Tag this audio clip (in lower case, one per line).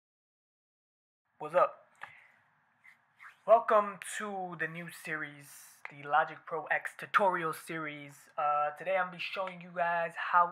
speech